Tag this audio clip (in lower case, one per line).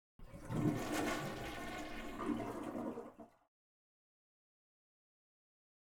home sounds
toilet flush